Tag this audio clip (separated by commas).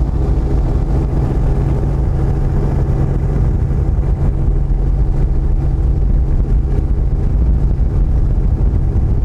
Wind, Boat, Wind noise (microphone)